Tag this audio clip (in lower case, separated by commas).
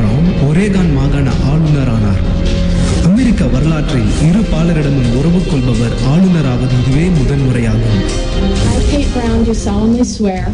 speech, music